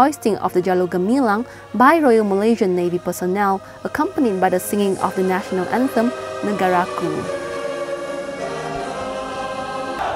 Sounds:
Choir, Music, Speech

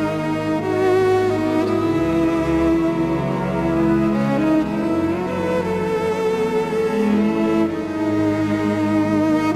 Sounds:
fiddle, Music, Musical instrument

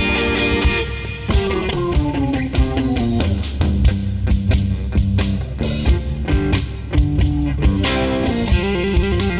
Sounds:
Music, Blues

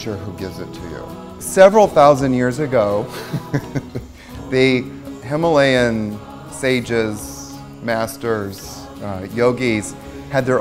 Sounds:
Mantra, Music, Speech

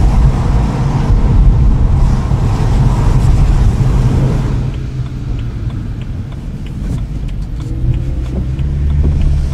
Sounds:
Car, Vehicle, outside, urban or man-made

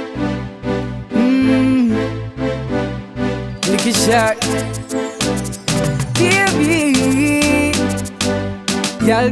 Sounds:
Music

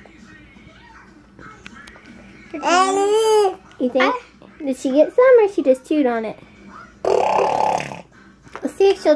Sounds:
inside a small room, Speech, kid speaking, Music

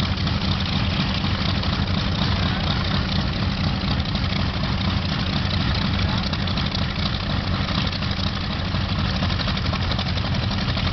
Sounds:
Speech

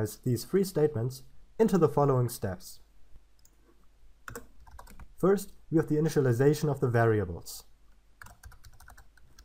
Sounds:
Clicking

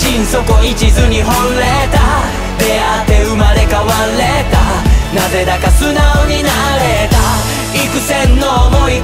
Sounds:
Music

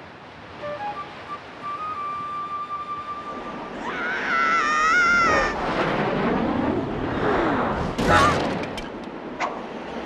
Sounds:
Wind

